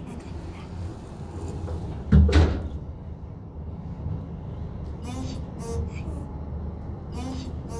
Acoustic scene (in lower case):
elevator